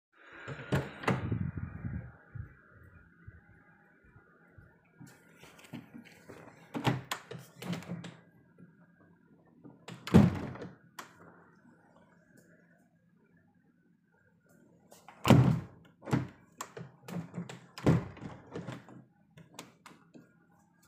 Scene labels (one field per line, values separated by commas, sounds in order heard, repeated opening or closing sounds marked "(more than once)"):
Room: living room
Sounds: door, footsteps, window (more than once)